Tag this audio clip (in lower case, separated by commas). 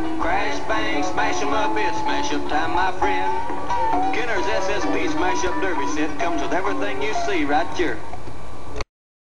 music, speech